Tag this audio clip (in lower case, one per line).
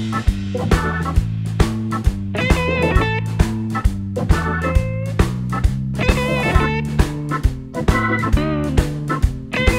music